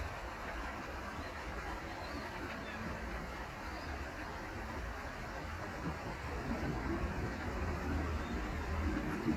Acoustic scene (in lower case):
park